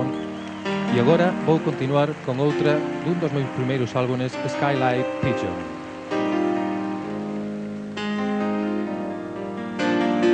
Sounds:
speech
music

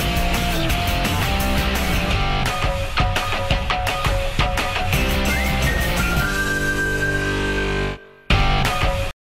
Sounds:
music

